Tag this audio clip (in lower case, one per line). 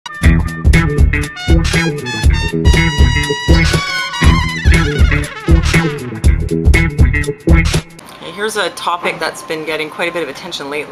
speech
music
inside a small room